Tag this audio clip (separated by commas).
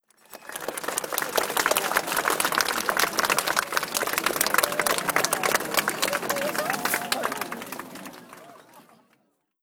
Human group actions, Crowd, Applause